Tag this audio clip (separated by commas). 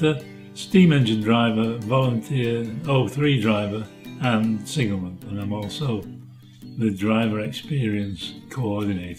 Speech